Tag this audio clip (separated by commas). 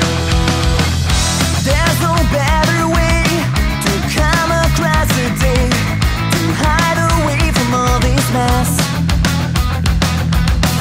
Music